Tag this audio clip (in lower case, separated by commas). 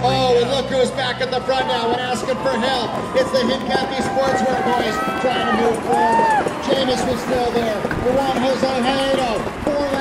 speech, vehicle, bicycle